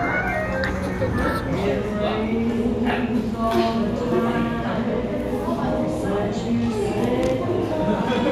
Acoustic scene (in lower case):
cafe